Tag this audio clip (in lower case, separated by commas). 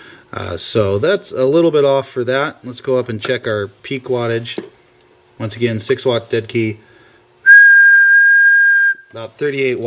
whistling, speech